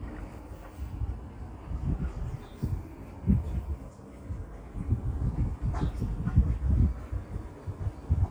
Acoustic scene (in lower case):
residential area